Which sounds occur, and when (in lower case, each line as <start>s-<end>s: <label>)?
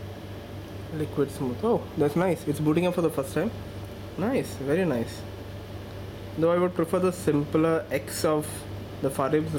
0.0s-9.5s: mechanisms
0.6s-0.7s: tick
0.9s-3.5s: man speaking
3.8s-3.9s: tick
4.2s-5.2s: man speaking
5.9s-6.0s: tick
6.3s-8.6s: man speaking
9.0s-9.5s: man speaking
9.5s-9.5s: tick